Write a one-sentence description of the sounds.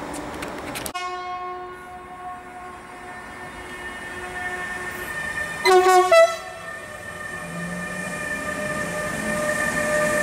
A train blows its horn for a long time